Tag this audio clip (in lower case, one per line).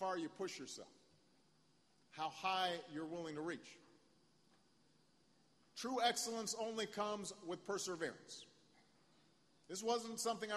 speech
man speaking
narration